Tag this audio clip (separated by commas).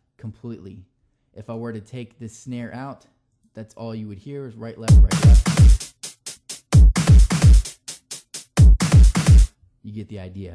Speech, Musical instrument, Music, Drum machine